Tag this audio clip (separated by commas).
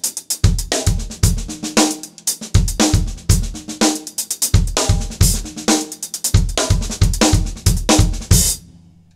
playing bass drum